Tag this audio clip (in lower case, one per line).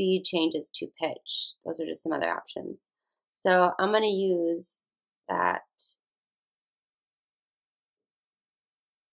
speech